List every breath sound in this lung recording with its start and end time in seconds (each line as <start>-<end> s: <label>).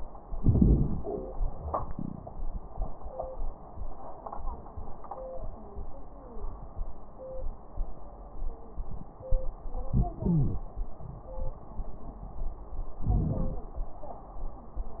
0.24-1.10 s: inhalation
0.24-1.10 s: crackles
1.62-2.48 s: exhalation
9.91-10.66 s: inhalation
10.24-10.66 s: wheeze
13.06-13.64 s: inhalation
13.06-13.64 s: crackles